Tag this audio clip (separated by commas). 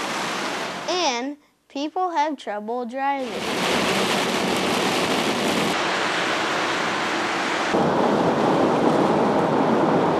Rain on surface, Speech